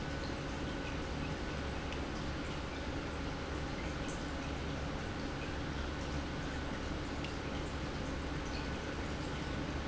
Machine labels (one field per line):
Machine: pump